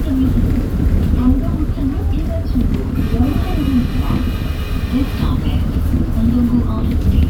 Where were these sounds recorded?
on a bus